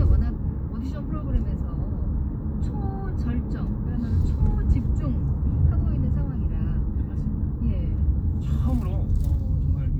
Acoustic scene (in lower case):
car